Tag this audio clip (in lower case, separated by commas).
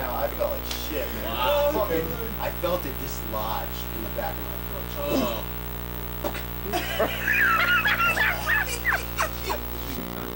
inside a small room, speech